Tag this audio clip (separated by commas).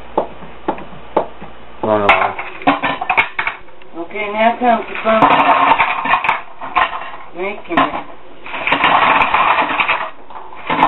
inside a small room, Speech